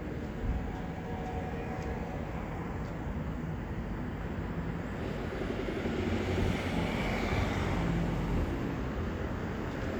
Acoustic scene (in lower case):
street